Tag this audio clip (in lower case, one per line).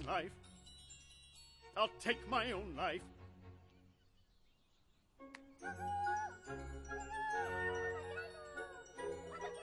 music
outside, rural or natural
speech